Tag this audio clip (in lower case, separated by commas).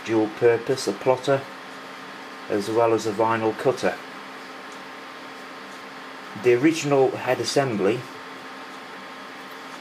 speech